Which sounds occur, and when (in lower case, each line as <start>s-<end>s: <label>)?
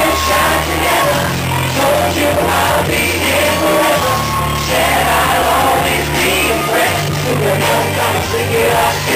0.0s-9.1s: choir
0.0s-9.1s: crowd
0.0s-9.1s: music